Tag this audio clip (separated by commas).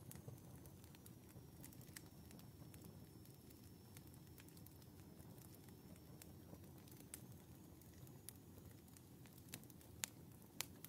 fire crackling